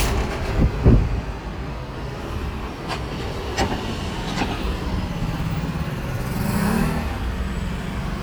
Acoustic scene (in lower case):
street